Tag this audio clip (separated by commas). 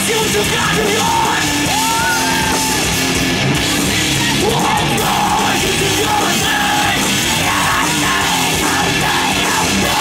Music